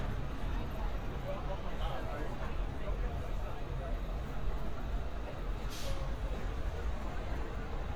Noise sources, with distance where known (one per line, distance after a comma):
medium-sounding engine
person or small group talking, near